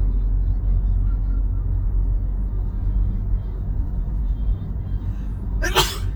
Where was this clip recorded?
in a car